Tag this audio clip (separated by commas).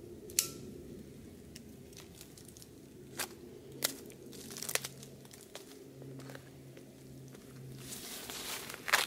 Crunch